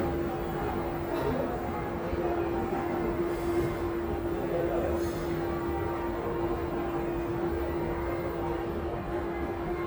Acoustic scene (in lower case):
crowded indoor space